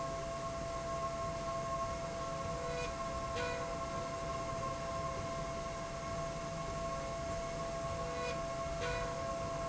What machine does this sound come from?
slide rail